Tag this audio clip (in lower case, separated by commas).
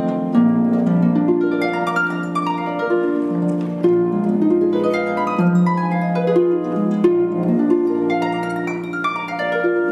playing harp, harp, plucked string instrument, music, musical instrument